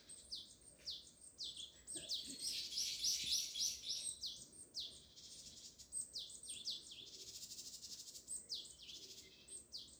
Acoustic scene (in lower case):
park